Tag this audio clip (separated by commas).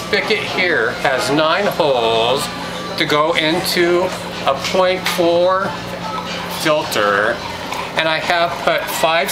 Speech